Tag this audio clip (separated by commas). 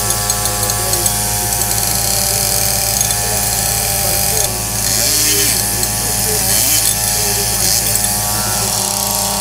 outside, rural or natural, Power tool, Speech